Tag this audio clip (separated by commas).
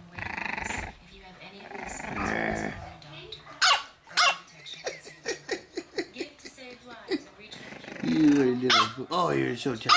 dog growling